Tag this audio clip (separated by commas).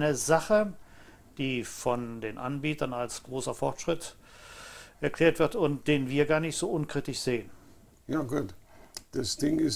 Speech